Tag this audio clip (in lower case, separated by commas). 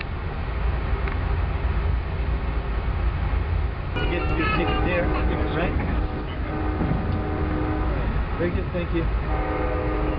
train, speech, outside, urban or man-made, vehicle, train wagon